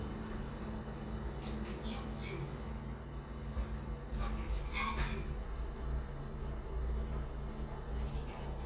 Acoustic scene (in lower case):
elevator